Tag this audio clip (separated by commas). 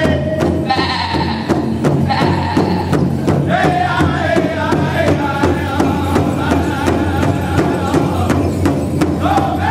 Music, Musical instrument, Drum, Bass drum